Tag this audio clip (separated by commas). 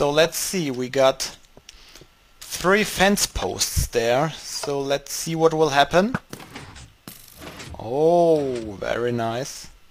Speech